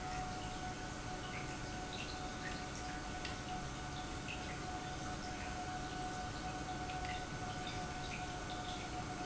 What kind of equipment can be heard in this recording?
pump